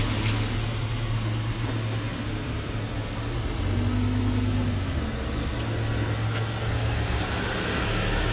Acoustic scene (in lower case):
street